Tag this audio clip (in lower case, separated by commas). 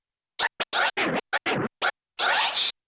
musical instrument, music, scratching (performance technique)